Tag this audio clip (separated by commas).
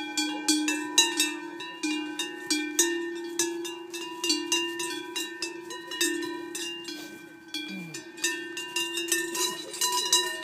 cattle